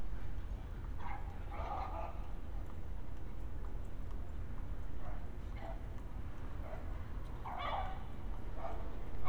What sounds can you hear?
dog barking or whining